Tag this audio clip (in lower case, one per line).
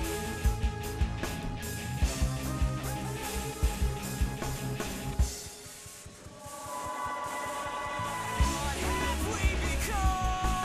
music